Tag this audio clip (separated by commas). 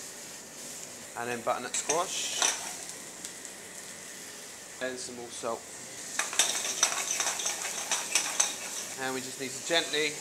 Speech